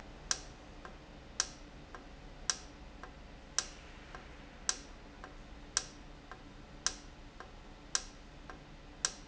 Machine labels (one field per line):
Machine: valve